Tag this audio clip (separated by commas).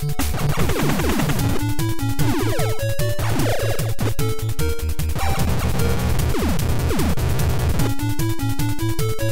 Techno, Music